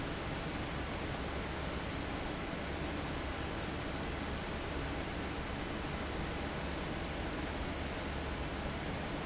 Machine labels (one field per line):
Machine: fan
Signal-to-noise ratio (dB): -6 dB